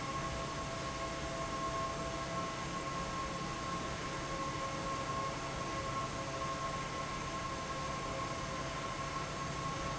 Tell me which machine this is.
fan